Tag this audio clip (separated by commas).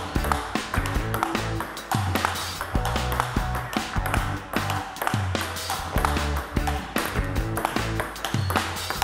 playing table tennis